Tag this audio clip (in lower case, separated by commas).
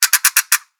pawl, mechanisms, percussion, music, musical instrument